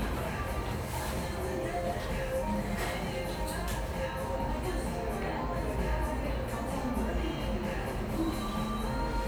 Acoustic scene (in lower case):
cafe